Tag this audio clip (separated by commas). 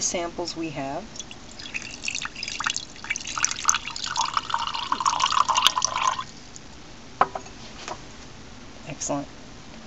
Speech, Liquid, inside a small room